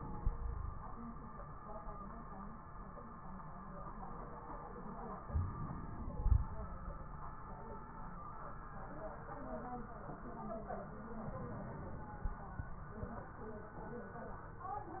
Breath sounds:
0.28-0.85 s: wheeze
5.28-6.72 s: inhalation
5.28-6.72 s: crackles
11.23-12.47 s: inhalation
11.23-12.47 s: crackles

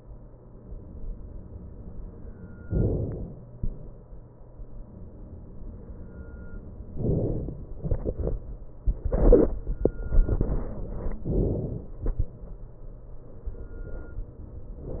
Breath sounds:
2.68-3.75 s: inhalation
7.06-7.77 s: inhalation
11.29-12.00 s: inhalation

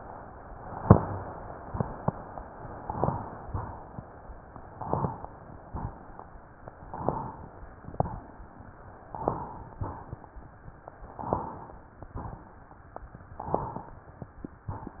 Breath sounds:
2.87-3.47 s: inhalation
2.87-3.47 s: crackles
3.47-4.08 s: exhalation
4.80-5.41 s: inhalation
4.80-5.41 s: crackles
5.66-6.26 s: exhalation
6.89-7.50 s: inhalation
6.89-7.50 s: crackles
7.82-8.43 s: exhalation
9.18-9.79 s: inhalation
9.18-9.79 s: crackles
9.85-10.46 s: exhalation
11.16-11.77 s: inhalation
11.16-11.77 s: crackles
12.05-12.66 s: exhalation
13.41-14.02 s: inhalation
13.41-14.02 s: crackles

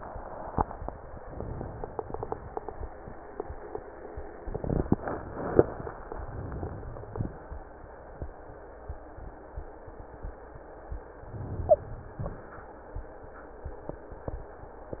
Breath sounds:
11.26-12.16 s: inhalation
11.64-11.86 s: wheeze

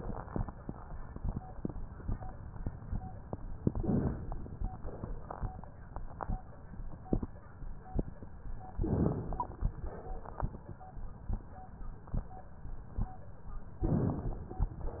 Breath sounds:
3.66-4.67 s: inhalation
4.67-5.53 s: exhalation
8.75-9.75 s: inhalation
9.87-10.70 s: exhalation
13.87-14.71 s: inhalation

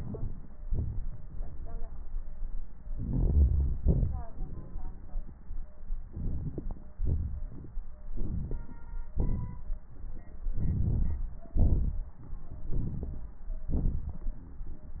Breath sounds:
0.00-0.62 s: inhalation
0.67-2.02 s: exhalation
2.91-3.74 s: inhalation
3.81-4.25 s: exhalation
6.09-6.88 s: inhalation
6.09-6.88 s: crackles
6.97-7.77 s: exhalation
6.97-7.77 s: crackles
8.12-9.03 s: inhalation
8.12-9.03 s: crackles
9.18-9.84 s: exhalation
10.57-11.23 s: inhalation
10.57-11.23 s: crackles
11.55-12.21 s: exhalation
12.75-13.41 s: inhalation
13.75-14.29 s: exhalation

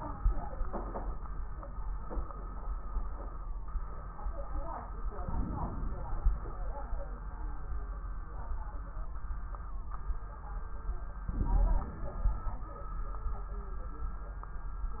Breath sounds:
5.28-6.19 s: inhalation
5.28-6.19 s: crackles
6.21-7.04 s: exhalation
11.27-12.14 s: inhalation
11.27-12.16 s: crackles
12.16-12.77 s: exhalation

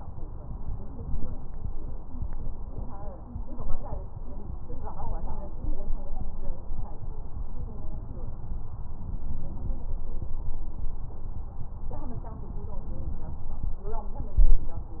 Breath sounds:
14.22-14.79 s: inhalation

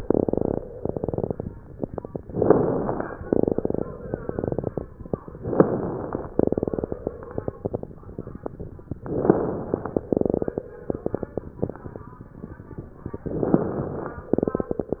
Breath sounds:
2.24-3.21 s: inhalation
2.24-3.21 s: crackles
5.33-6.30 s: inhalation
5.33-6.30 s: crackles
9.03-10.06 s: inhalation
9.03-10.06 s: crackles
13.28-14.31 s: inhalation
13.28-14.31 s: crackles

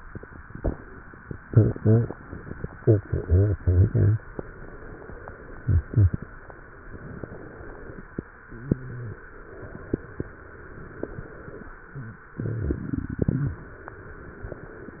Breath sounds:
4.37-5.56 s: inhalation
6.89-8.09 s: inhalation

